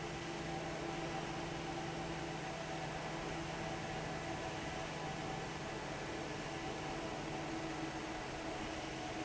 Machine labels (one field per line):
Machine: fan